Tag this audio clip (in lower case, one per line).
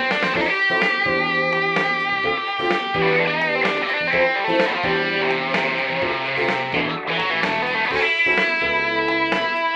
music
plucked string instrument
guitar
musical instrument